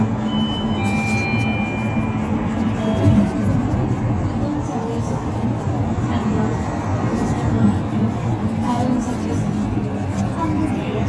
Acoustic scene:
bus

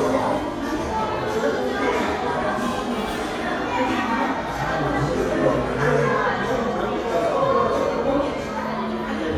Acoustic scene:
crowded indoor space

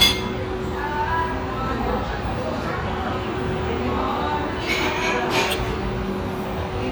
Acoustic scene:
restaurant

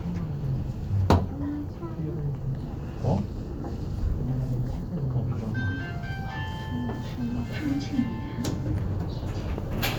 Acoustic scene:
elevator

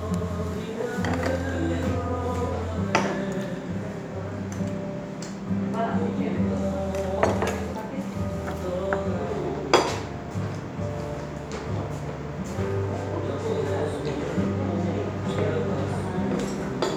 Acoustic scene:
restaurant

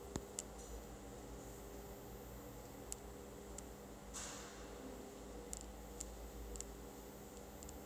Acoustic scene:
elevator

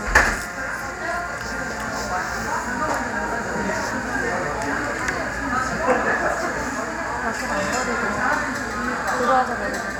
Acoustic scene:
cafe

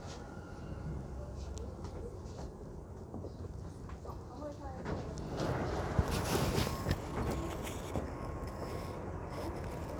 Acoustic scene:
subway train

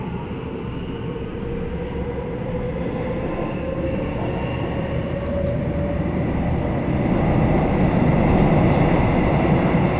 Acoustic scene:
subway train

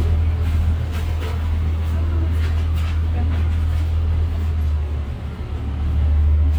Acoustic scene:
bus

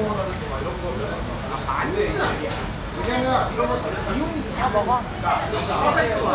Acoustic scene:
crowded indoor space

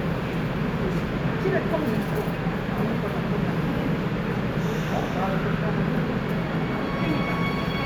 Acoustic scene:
subway station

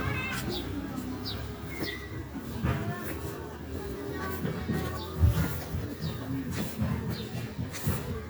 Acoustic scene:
residential area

